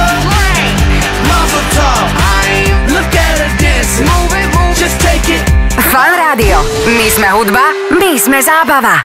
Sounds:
speech, music

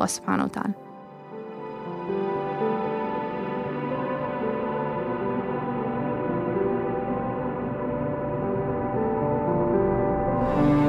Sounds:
electronic music, music

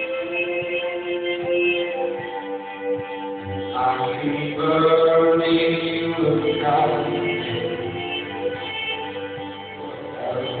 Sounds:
music

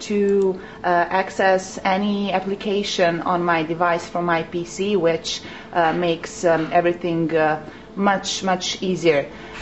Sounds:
speech

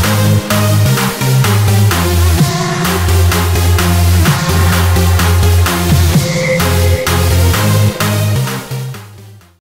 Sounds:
music

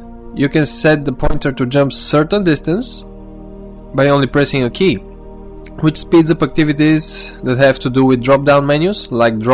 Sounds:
music, speech

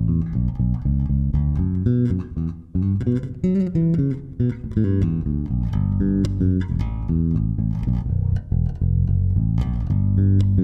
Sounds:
music, plucked string instrument, musical instrument, guitar, strum, bass guitar

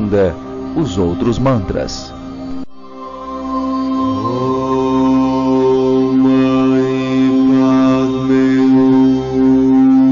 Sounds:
music, mantra, speech

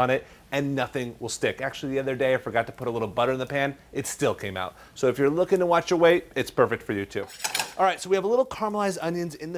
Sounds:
speech

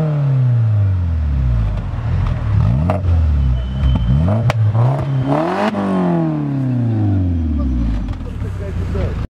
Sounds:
speech

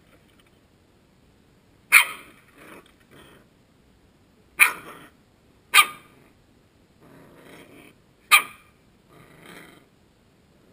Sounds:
dog, inside a small room, animal, pets

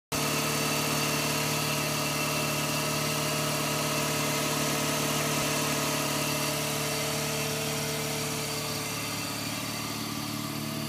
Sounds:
engine, medium engine (mid frequency), vehicle

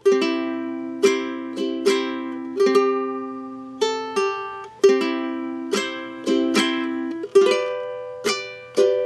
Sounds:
playing ukulele

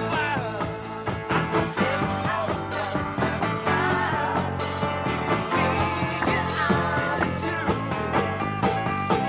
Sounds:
roll, rock and roll, music

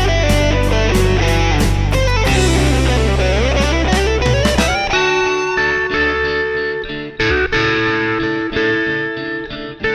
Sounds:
music

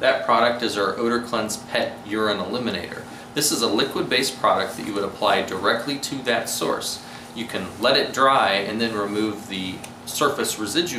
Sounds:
speech

